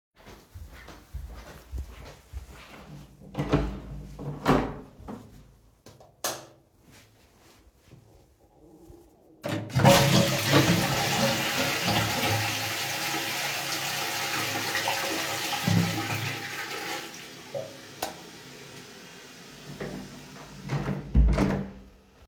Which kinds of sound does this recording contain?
door, light switch, toilet flushing